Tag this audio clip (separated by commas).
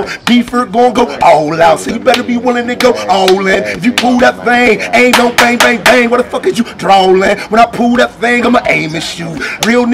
Speech